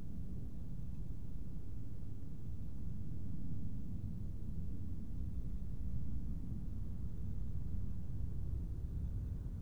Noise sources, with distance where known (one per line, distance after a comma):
background noise